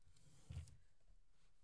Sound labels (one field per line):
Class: drawer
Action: closing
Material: wicker